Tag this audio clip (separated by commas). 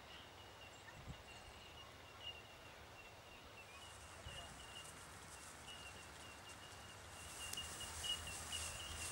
Domestic animals, Animal, Sheep